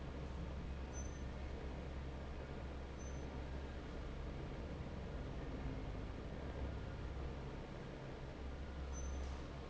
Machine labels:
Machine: fan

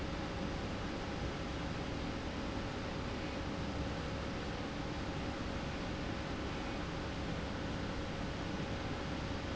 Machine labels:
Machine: slide rail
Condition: normal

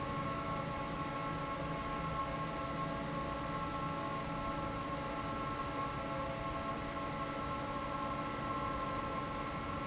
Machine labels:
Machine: fan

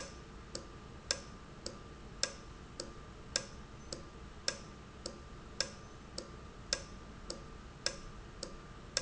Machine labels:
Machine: valve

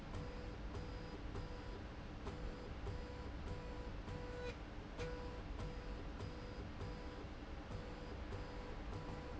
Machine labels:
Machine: slide rail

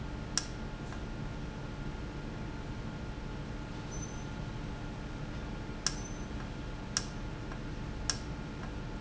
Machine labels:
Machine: valve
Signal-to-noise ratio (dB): -6 dB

